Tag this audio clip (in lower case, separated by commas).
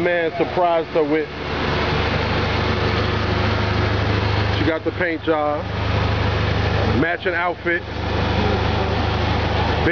vehicle, speech, outside, urban or man-made